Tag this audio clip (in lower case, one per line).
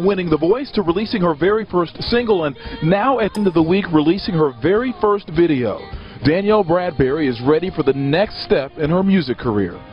music
speech